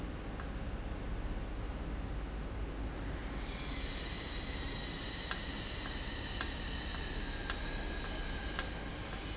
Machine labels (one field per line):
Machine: valve